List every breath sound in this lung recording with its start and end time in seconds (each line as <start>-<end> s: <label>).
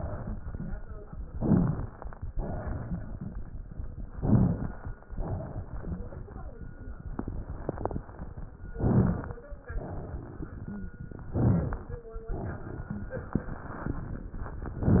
1.31-2.22 s: inhalation
1.31-2.22 s: crackles
2.31-3.46 s: exhalation
4.10-5.01 s: inhalation
4.10-5.01 s: crackles
5.26-6.40 s: exhalation
8.71-9.62 s: inhalation
8.71-9.62 s: crackles
9.71-10.85 s: exhalation
11.29-12.11 s: inhalation
11.29-12.11 s: crackles
12.31-13.45 s: exhalation